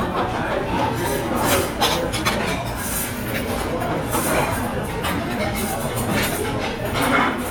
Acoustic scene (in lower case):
crowded indoor space